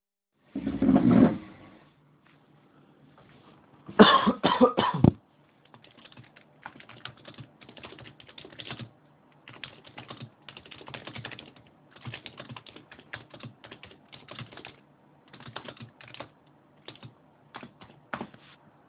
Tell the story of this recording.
I move the chair, cough and sit at the table, then I type on a keyboard for several seconds.